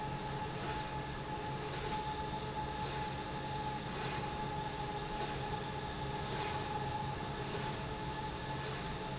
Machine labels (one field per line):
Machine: slide rail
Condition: normal